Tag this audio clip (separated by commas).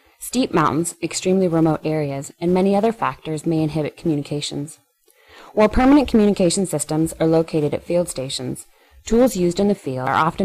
Speech